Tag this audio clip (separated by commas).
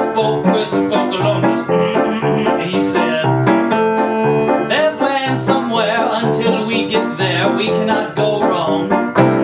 Music, Male singing